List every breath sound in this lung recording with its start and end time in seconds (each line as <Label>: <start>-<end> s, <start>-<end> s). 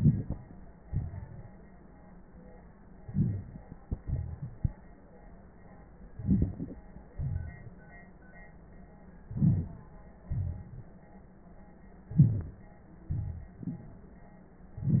Inhalation: 3.04-3.78 s, 6.15-6.83 s, 9.30-9.90 s, 12.09-12.62 s
Exhalation: 0.80-1.50 s, 3.81-4.71 s, 7.14-7.87 s, 10.30-11.02 s, 13.13-14.17 s
Wheeze: 12.14-12.42 s
Crackles: 3.00-3.79 s, 3.81-4.71 s, 6.15-6.83 s